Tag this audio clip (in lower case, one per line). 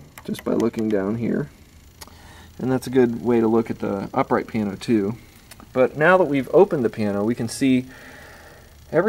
speech